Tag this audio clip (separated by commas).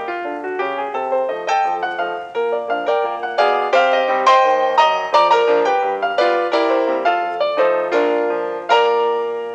Keyboard (musical)